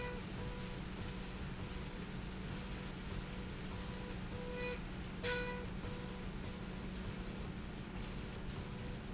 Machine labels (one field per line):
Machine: slide rail